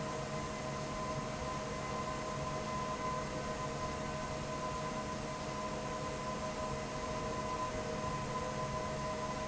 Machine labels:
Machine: fan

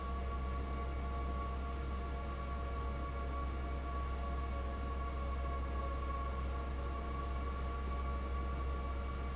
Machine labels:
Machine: fan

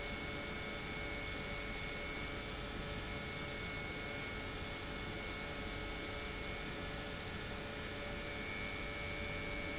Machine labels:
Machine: pump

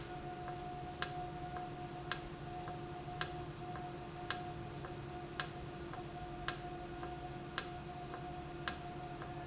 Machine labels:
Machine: valve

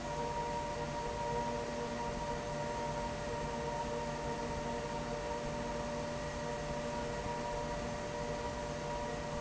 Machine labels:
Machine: fan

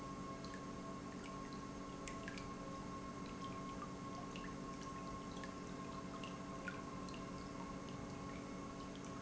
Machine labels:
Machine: pump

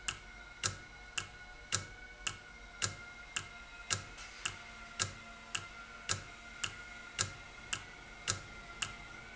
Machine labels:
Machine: valve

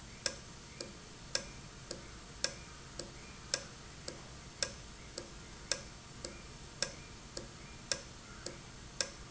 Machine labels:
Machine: valve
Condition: normal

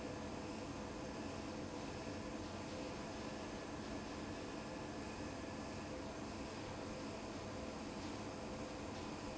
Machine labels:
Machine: fan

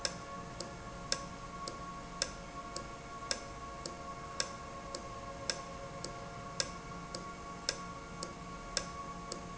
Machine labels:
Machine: valve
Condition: normal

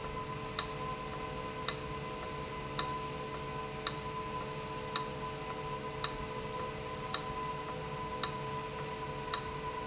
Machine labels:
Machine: valve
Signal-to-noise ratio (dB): -6 dB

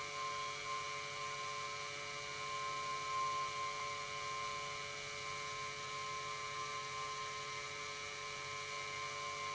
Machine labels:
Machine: pump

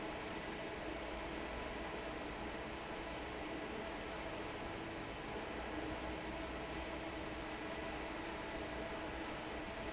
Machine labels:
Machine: fan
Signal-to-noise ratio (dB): 6 dB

